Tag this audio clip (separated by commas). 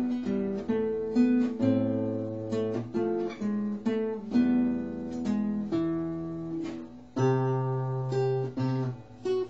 Plucked string instrument, Music, Guitar, Musical instrument